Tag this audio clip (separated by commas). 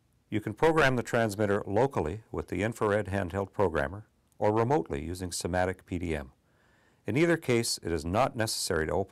Speech